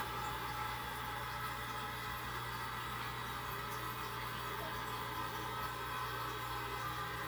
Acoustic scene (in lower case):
restroom